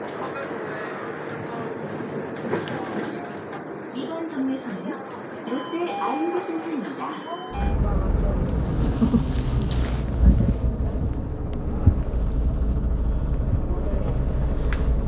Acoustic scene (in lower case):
bus